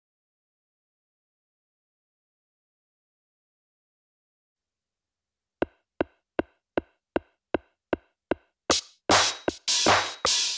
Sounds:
musical instrument, silence, music

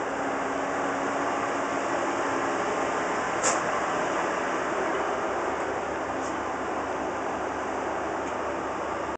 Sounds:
train, vehicle

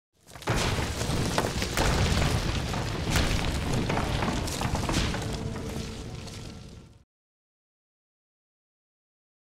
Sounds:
thwack, sound effect, crash

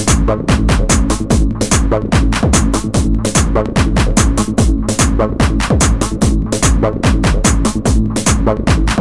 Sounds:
electronic music, music, techno

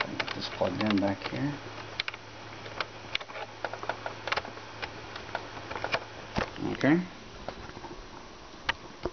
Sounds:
speech, inside a small room

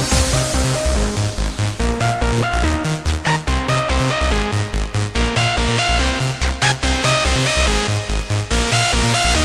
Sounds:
background music, music

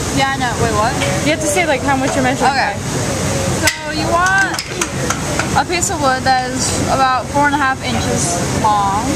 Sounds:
speech

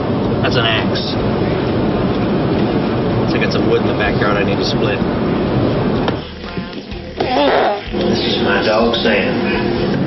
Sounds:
speech, outside, rural or natural, inside a small room

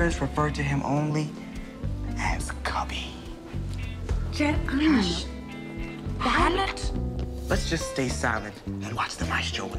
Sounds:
speech, music

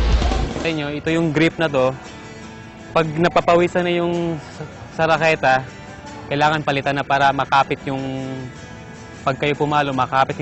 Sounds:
speech, music

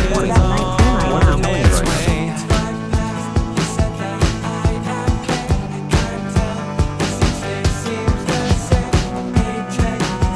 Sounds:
speech, music

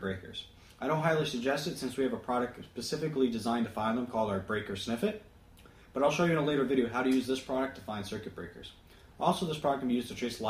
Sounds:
speech

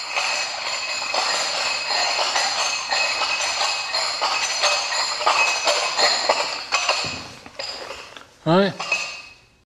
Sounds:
speech

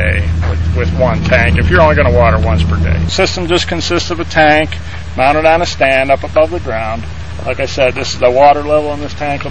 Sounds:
speech

